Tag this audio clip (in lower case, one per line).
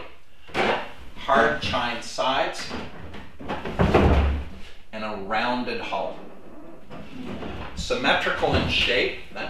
speech